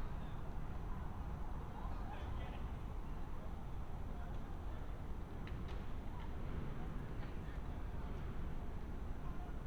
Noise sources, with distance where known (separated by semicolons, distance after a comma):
person or small group talking, far